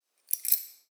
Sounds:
domestic sounds, keys jangling

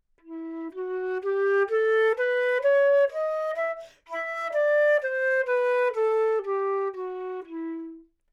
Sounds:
music, musical instrument, wind instrument

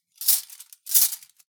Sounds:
cutlery, domestic sounds

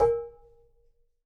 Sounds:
dishes, pots and pans, home sounds

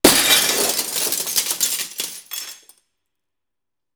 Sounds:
glass, shatter

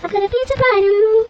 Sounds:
singing, human voice

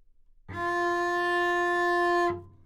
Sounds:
bowed string instrument, musical instrument, music

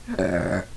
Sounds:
burping

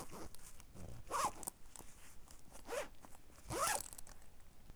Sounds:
domestic sounds, zipper (clothing)

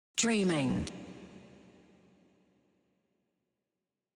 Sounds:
human voice, speech

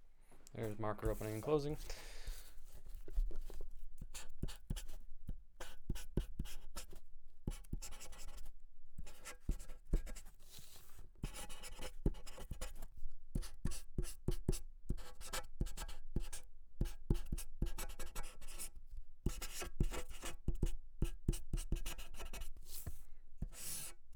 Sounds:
writing, home sounds

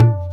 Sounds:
drum, music, tabla, percussion, musical instrument

